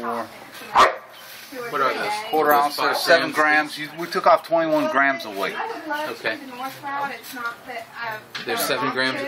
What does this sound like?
Men speaking with a woman talking in the distance then a dog barks